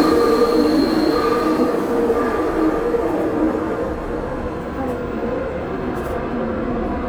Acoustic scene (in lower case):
subway train